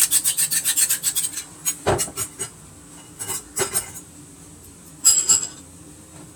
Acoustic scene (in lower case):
kitchen